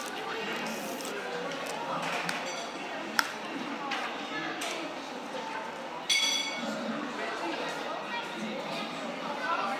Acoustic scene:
cafe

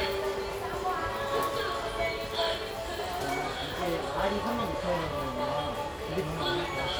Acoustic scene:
crowded indoor space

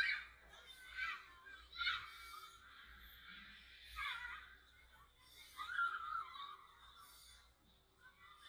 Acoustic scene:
residential area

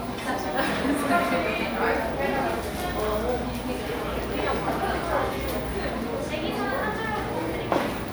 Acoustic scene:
cafe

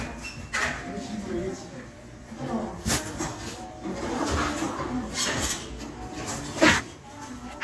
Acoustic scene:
crowded indoor space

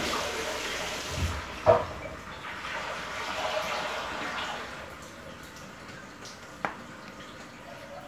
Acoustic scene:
restroom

